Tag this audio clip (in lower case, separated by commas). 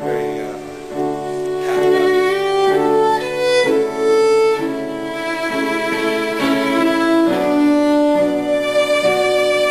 violin, musical instrument, music